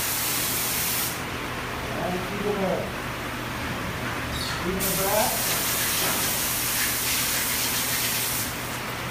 A spray is released several times while a man talks and a machine works